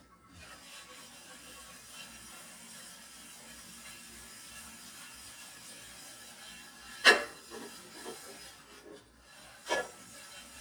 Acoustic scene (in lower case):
kitchen